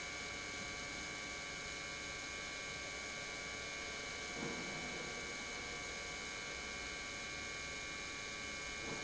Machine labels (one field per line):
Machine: pump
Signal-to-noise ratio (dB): 6 dB